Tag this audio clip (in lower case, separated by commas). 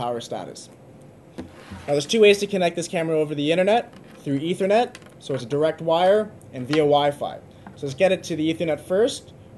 speech